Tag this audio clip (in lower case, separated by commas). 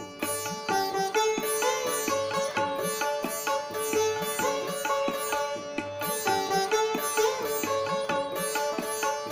playing sitar